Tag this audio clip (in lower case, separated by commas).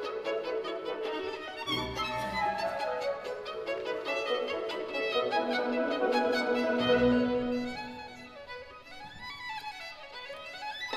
fiddle, music, musical instrument